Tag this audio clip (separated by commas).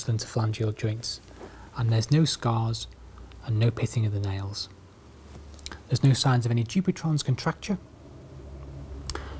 Speech